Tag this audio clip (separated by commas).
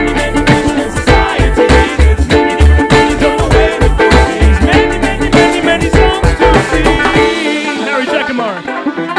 Singing, playing banjo, Banjo, Mandolin